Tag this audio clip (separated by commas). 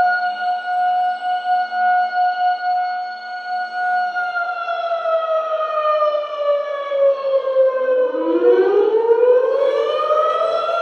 Civil defense siren, Siren